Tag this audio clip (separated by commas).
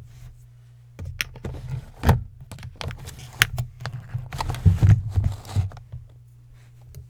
Domestic sounds, Drawer open or close